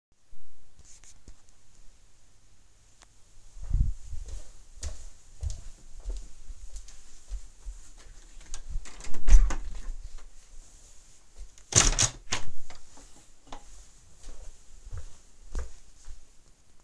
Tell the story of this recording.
I grabed my phone, walked into another room and closed the door. Then I turned towards the window and opened it. Finally, I started to walk away from the window.